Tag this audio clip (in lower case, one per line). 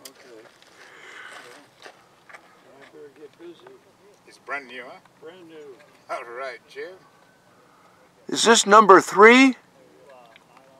speech
outside, rural or natural